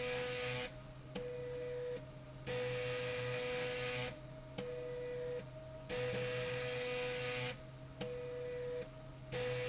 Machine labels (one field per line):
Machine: slide rail